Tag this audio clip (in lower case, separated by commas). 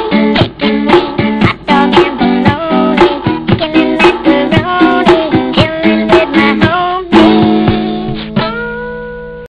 music